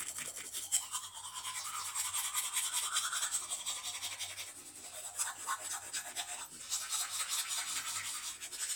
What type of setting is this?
restroom